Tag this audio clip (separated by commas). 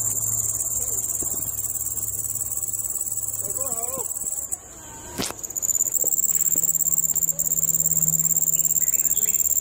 cricket chirping